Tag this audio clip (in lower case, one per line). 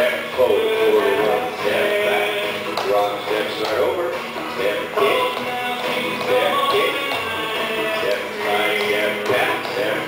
speech
music